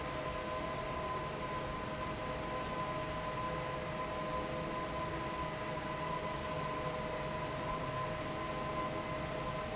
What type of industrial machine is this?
fan